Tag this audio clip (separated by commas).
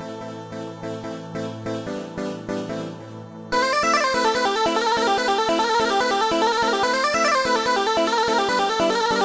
Funny music, Music